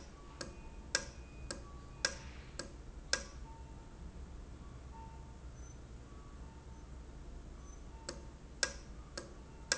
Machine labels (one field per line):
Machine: valve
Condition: normal